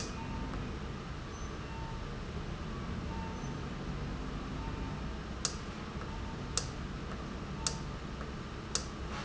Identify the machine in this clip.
valve